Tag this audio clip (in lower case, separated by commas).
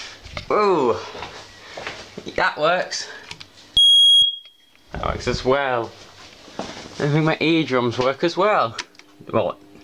smoke alarm